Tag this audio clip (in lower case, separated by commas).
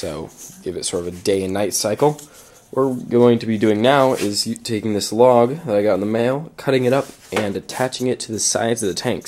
speech, inside a small room